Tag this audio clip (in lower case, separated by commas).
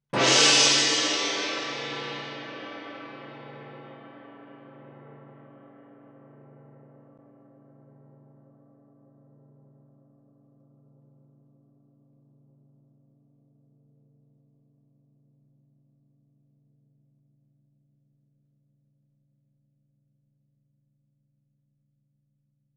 musical instrument, music, gong, percussion